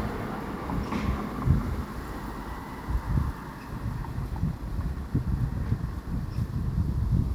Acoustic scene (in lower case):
residential area